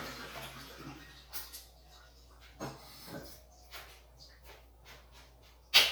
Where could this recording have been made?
in a restroom